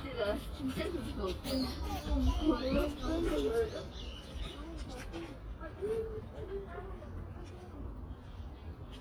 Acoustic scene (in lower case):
residential area